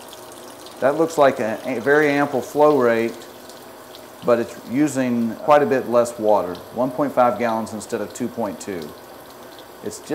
Water running from a faucet as a man speaks